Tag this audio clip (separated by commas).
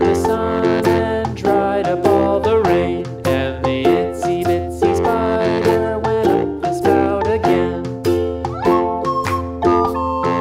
Music